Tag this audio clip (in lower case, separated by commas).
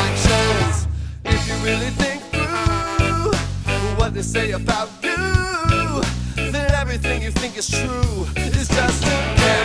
funk, music, jazz